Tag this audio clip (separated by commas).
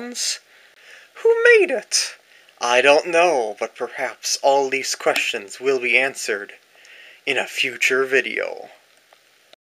Speech